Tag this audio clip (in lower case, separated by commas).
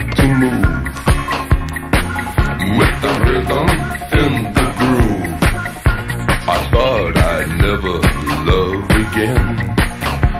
exciting music, music